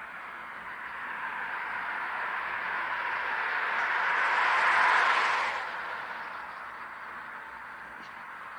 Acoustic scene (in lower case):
street